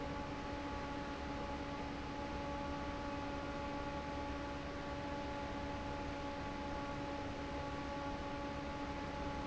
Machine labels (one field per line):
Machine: fan